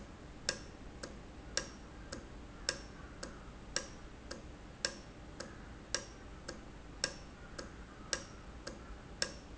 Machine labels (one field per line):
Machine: valve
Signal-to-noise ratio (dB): 6 dB